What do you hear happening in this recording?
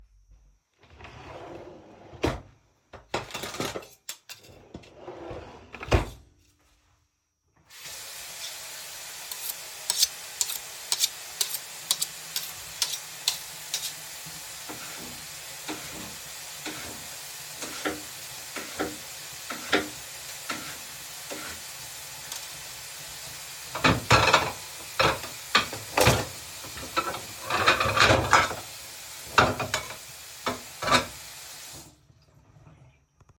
I turned on the sink and washed a few plates and forks under the running water. I turned off the tap and opened a drawer to put a towel away.